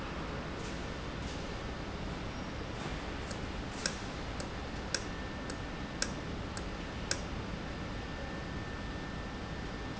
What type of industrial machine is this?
valve